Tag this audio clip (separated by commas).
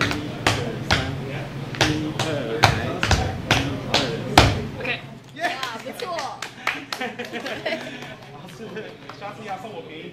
tap dancing